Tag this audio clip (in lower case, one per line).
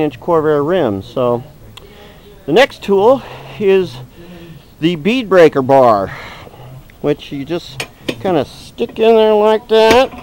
speech